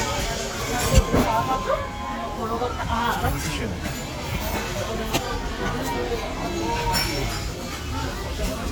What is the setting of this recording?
restaurant